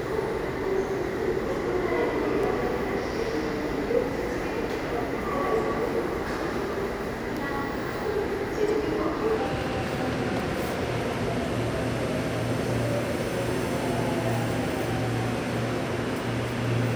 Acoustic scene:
subway station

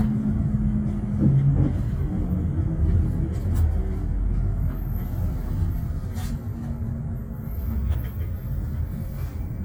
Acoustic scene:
bus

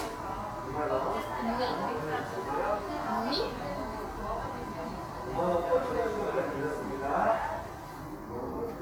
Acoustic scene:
crowded indoor space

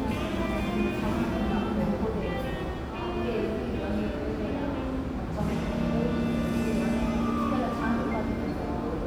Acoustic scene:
cafe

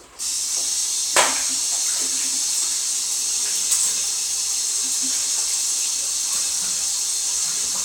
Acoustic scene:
restroom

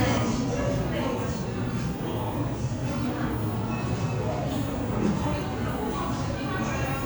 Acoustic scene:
cafe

